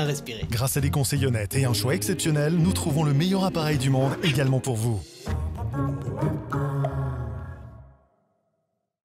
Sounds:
music, speech

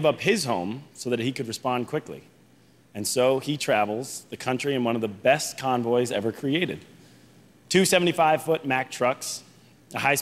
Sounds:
monologue, speech, male speech

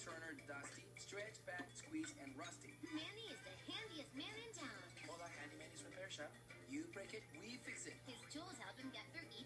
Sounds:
speech, music

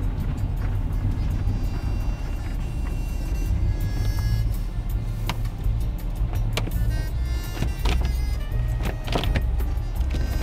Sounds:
music

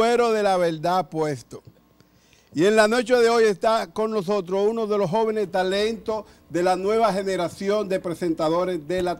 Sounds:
speech

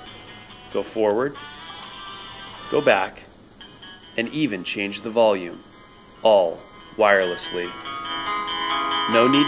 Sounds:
music, speech, inside a small room

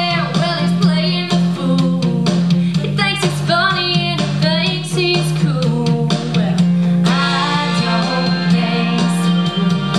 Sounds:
music

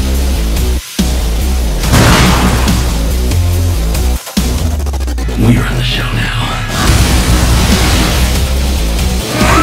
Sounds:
speech, music

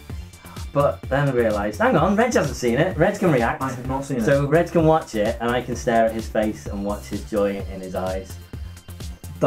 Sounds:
speech, music

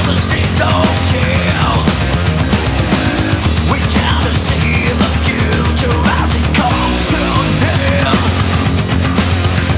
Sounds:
music, rhythm and blues

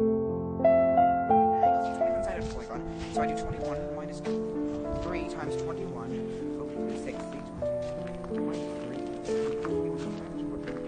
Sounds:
music, speech

